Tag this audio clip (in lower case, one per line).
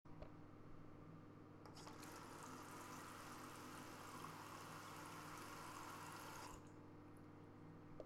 faucet
home sounds
water